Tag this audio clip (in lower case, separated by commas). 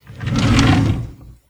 home sounds, drawer open or close